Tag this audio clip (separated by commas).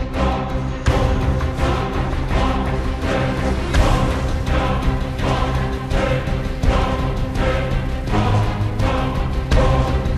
Music